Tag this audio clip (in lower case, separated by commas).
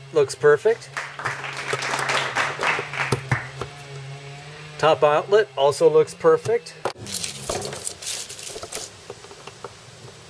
speech